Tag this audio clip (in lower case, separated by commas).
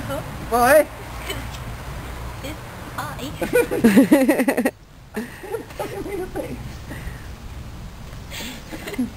outside, rural or natural, speech